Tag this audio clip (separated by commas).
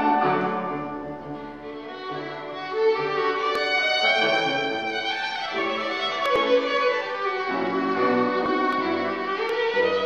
Violin, Music, Musical instrument